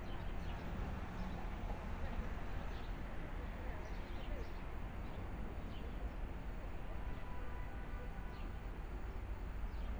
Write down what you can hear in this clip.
engine of unclear size, person or small group talking